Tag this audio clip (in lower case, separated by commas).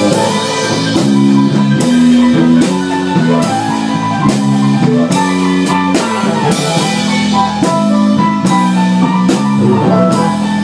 plucked string instrument, musical instrument, music, guitar